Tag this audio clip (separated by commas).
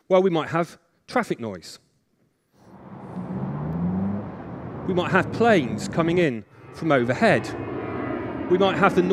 Speech, Whir